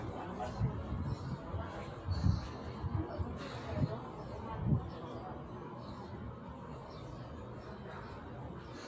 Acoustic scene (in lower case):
park